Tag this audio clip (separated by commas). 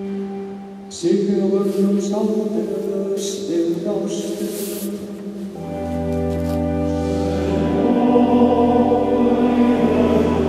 Chant, Choir